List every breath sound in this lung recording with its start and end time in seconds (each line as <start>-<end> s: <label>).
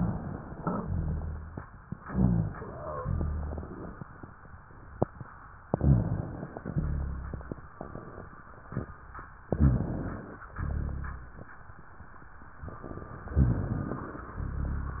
0.67-1.65 s: exhalation
0.67-1.65 s: rhonchi
1.99-2.98 s: inhalation
1.99-2.98 s: rhonchi
3.00-3.99 s: exhalation
3.00-3.99 s: rhonchi
5.67-6.57 s: inhalation
5.67-6.57 s: rhonchi
6.75-7.65 s: exhalation
6.75-7.65 s: rhonchi
9.53-10.42 s: inhalation
9.53-10.42 s: rhonchi
10.59-11.48 s: exhalation
10.59-11.48 s: rhonchi
13.38-14.27 s: inhalation
13.38-14.27 s: rhonchi
14.38-15.00 s: exhalation
14.38-15.00 s: rhonchi